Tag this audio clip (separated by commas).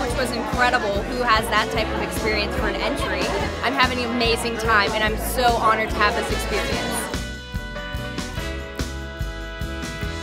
Speech, Music